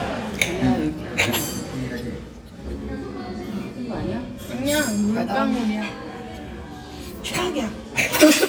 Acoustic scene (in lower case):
restaurant